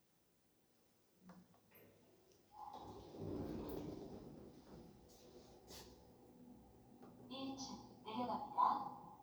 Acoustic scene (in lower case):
elevator